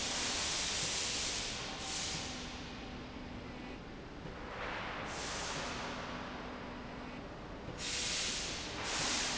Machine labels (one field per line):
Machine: slide rail